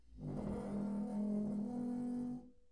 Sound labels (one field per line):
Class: furniture moving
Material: metal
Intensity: medium